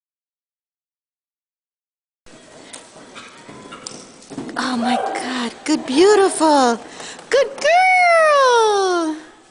Human speech with clip-clop and kids talking in the background